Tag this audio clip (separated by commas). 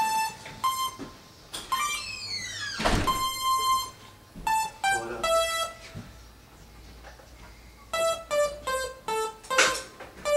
Electric piano, Keyboard (musical), Piano